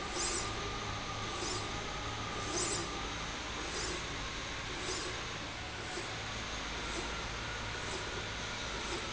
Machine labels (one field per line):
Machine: slide rail